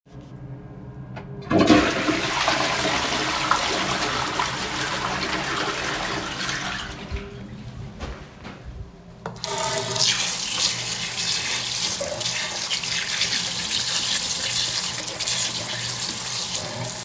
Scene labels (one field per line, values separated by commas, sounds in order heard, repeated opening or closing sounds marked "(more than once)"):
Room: bathroom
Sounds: toilet flushing, running water